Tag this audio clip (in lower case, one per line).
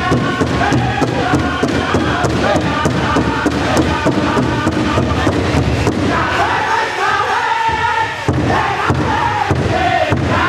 music